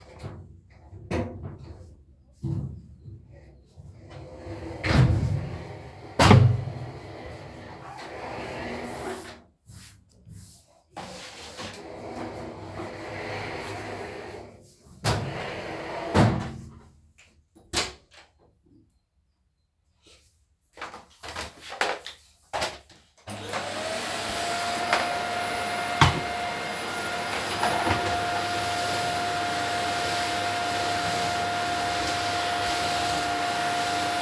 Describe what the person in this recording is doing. I moved the the furniture and wiped it off a bit, then I opened the door and turned on the vacuum and started vacuuming the floor